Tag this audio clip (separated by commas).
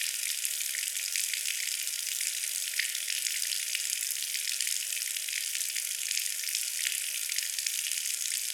Pour, Trickle, Sink (filling or washing), Liquid, Water tap, Domestic sounds